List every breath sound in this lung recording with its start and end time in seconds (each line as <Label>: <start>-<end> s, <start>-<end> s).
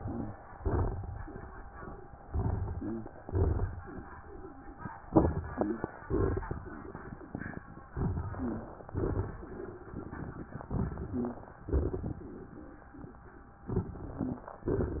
Inhalation: 2.22-3.11 s, 5.05-5.88 s, 7.89-8.88 s, 10.70-11.54 s, 13.70-14.50 s
Exhalation: 0.53-1.33 s, 3.21-3.91 s, 6.09-7.19 s, 8.94-9.93 s, 11.65-12.49 s
Wheeze: 2.73-3.09 s, 5.52-5.88 s, 8.33-8.77 s, 11.06-11.50 s
Crackles: 0.53-1.33 s, 2.22-3.11 s, 3.21-3.91 s, 5.05-5.67 s, 6.09-7.19 s, 7.93-8.63 s, 8.92-9.62 s, 10.70-11.54 s, 11.65-12.49 s, 13.70-14.50 s